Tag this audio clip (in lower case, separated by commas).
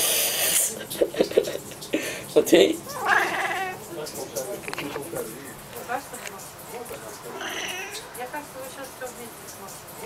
speech